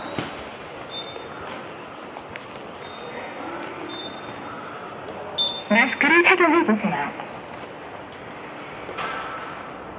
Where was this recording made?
in a subway station